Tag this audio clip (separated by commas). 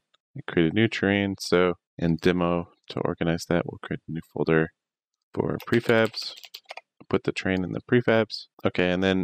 Speech